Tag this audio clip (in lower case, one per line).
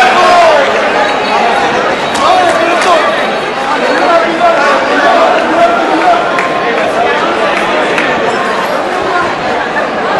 speech